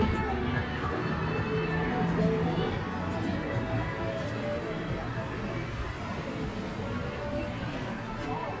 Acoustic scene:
street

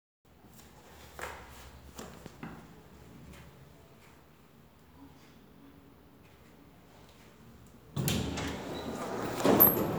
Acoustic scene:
elevator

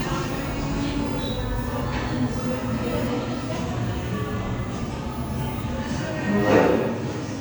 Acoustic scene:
cafe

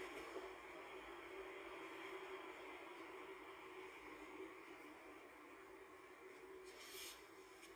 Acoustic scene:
car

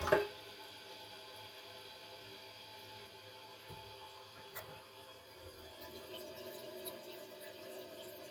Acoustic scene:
restroom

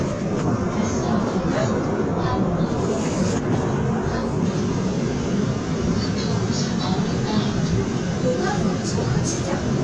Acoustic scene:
subway train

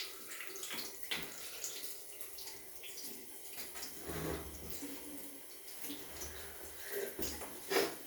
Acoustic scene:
restroom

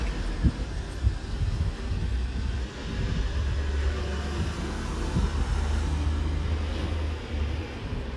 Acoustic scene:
residential area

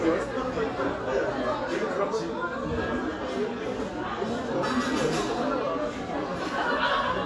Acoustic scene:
crowded indoor space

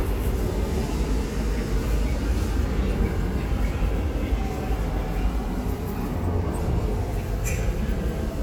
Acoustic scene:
subway station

